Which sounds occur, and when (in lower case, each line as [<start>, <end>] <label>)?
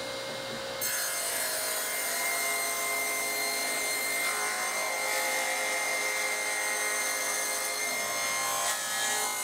[0.00, 9.43] mechanisms
[0.22, 0.59] generic impact sounds